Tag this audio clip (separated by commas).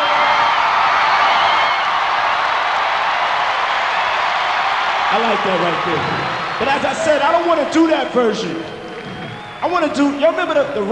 Speech